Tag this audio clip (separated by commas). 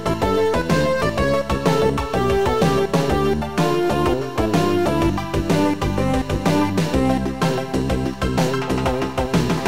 Music, Exciting music